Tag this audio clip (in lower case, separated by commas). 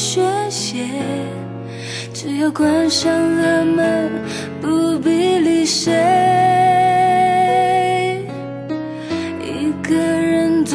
music